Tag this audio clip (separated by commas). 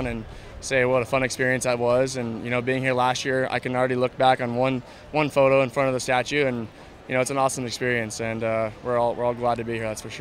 inside a public space, Speech